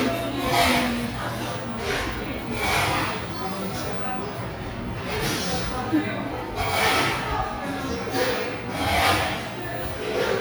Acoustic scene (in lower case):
cafe